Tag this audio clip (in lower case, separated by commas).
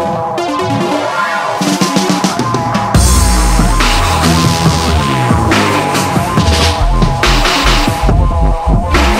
music